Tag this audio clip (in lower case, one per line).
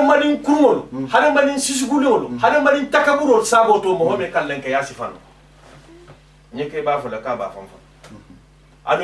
speech